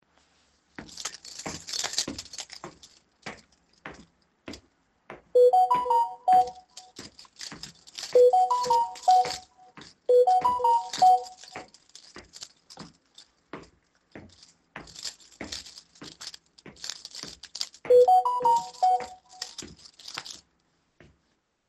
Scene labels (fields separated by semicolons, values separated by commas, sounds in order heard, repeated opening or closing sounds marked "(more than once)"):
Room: hallway; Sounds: keys, footsteps, phone ringing